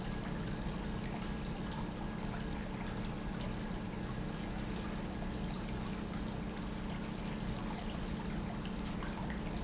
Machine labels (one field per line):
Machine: pump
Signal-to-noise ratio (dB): -6 dB